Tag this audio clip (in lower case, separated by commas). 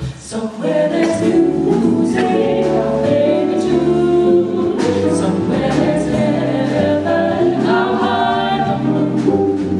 music, singing